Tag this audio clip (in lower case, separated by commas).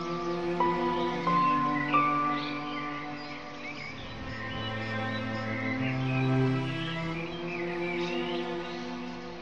outside, rural or natural, music